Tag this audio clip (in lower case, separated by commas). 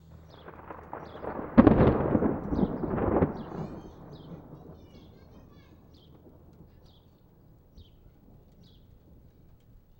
thunderstorm, thunder